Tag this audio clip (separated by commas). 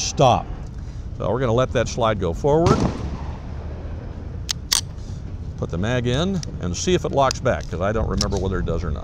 Speech, outside, urban or man-made